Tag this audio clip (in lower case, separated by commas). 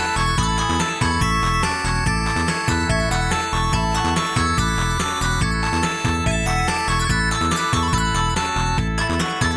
music, theme music